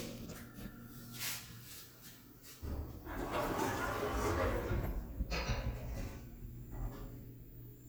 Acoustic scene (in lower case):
elevator